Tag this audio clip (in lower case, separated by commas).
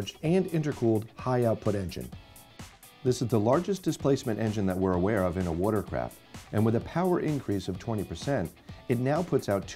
speech, music